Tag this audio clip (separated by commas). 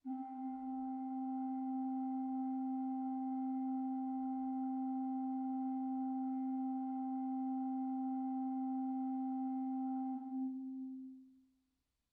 Musical instrument, Organ, Keyboard (musical), Music